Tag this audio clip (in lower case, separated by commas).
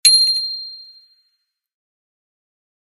vehicle, bicycle bell, alarm, bell, bicycle